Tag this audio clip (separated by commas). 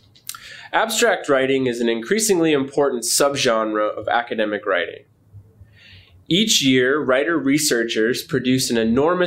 Speech